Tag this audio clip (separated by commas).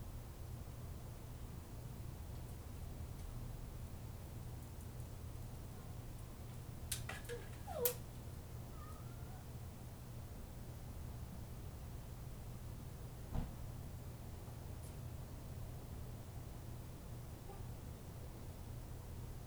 Animal, Dog, Domestic animals